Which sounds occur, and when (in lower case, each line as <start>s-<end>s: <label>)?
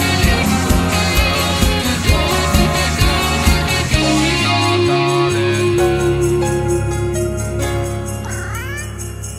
0.0s-9.3s: music
8.2s-8.9s: human sounds